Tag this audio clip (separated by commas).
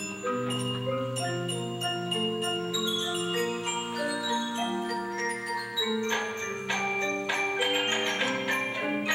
Music